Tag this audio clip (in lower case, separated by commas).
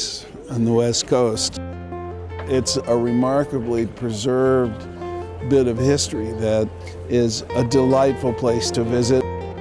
music, speech